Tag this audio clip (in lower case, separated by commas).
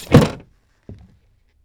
thump